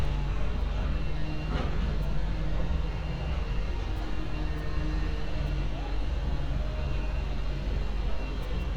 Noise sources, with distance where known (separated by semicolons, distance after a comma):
unidentified powered saw, far